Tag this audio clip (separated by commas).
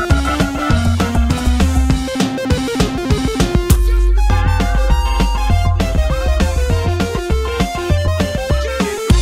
Techno, Music, Electronic music